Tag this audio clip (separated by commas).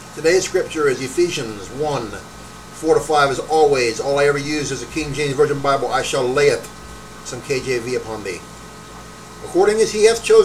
Speech